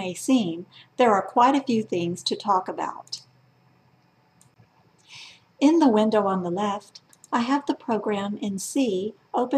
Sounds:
speech

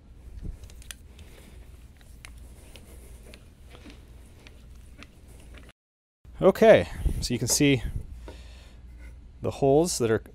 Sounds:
speech
tools

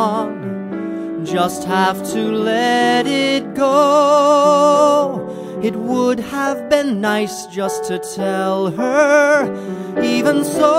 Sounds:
male singing
music

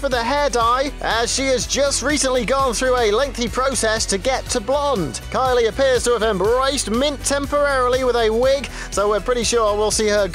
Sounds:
speech
music

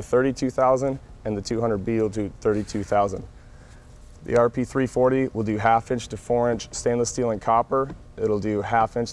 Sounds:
speech

